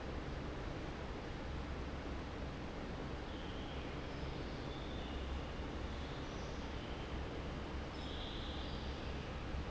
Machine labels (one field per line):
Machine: fan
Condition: normal